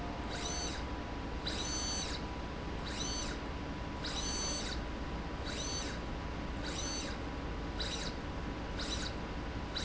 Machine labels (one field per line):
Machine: slide rail